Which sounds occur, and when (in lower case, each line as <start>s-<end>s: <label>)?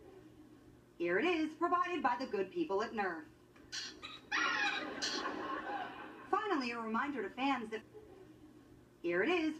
0.0s-0.6s: laughter
0.0s-9.5s: mechanisms
1.0s-3.3s: female speech
3.5s-3.6s: tick
3.7s-5.2s: animal
4.4s-6.3s: laughter
6.3s-7.9s: female speech
7.9s-8.5s: laughter
9.0s-9.5s: female speech